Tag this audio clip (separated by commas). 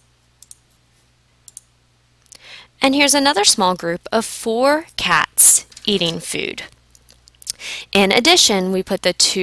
Speech